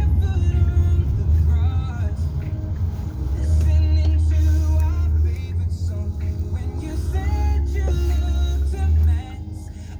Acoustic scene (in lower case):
car